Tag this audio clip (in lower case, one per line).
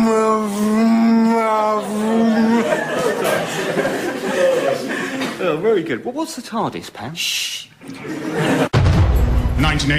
speech
music